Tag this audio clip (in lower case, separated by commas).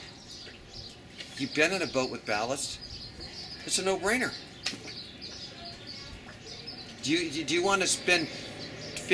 speech, outside, rural or natural